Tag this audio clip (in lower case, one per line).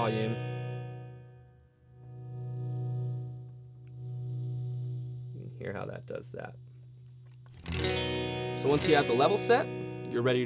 distortion